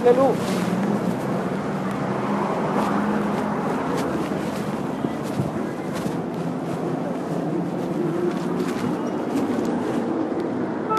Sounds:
Speech

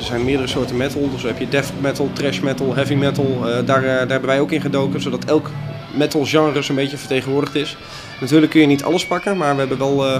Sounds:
Speech

